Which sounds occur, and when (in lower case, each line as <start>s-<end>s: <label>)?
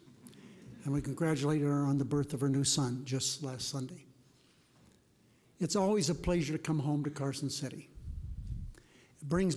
0.0s-9.5s: background noise
0.2s-0.3s: human sounds
0.2s-0.6s: breathing
0.7s-4.0s: male speech
4.2s-4.8s: breathing
4.3s-4.4s: human sounds
4.8s-4.9s: human sounds
5.5s-7.9s: male speech
8.4s-8.5s: generic impact sounds
8.7s-8.8s: human sounds
8.8s-9.1s: breathing